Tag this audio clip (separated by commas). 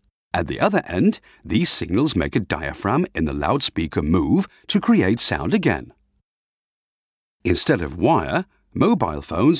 Speech